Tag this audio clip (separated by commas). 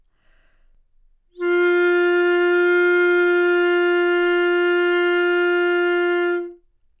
Music, Musical instrument, woodwind instrument